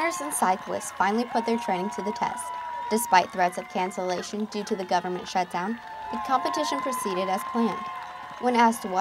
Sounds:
speech, outside, urban or man-made

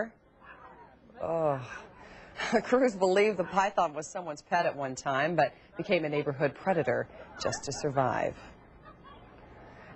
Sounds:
speech

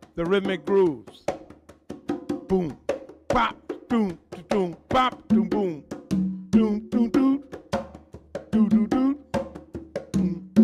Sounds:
percussion, music

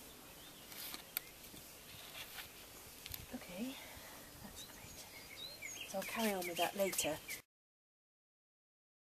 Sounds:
speech, bird

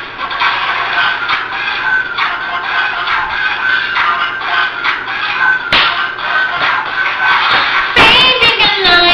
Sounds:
male singing, music

